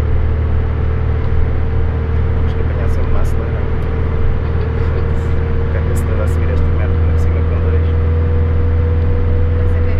Sounds of vehicles driving in background while man talks